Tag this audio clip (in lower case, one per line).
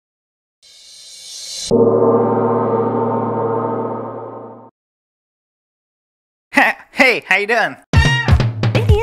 gong